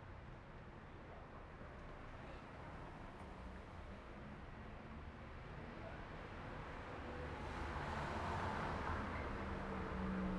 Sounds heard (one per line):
car
people talking
car wheels rolling
car engine accelerating